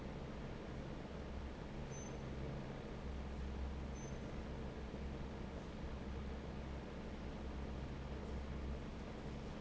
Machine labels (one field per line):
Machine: fan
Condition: normal